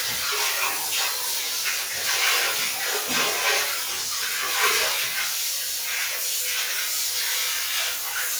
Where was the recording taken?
in a restroom